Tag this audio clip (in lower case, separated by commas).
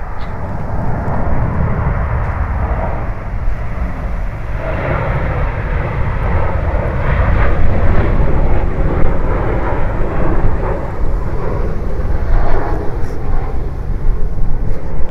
aircraft, vehicle, fixed-wing aircraft